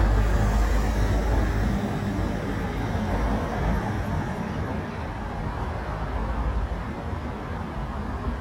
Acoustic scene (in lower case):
street